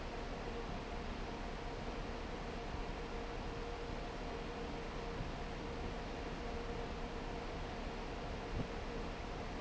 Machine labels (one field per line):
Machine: fan